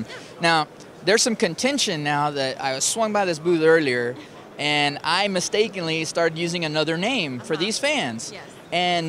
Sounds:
Speech

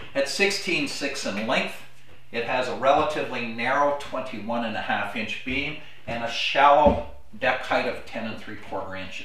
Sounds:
Speech

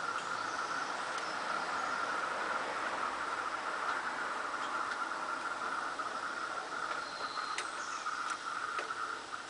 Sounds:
dove, outside, rural or natural, Bird

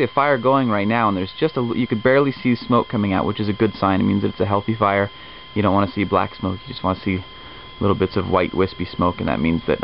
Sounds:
Speech

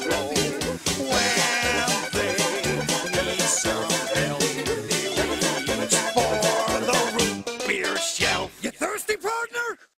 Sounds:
Music

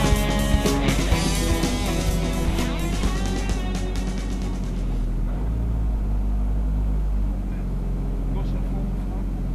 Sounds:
Music

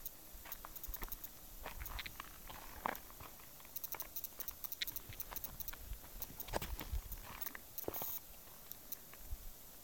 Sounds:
footsteps

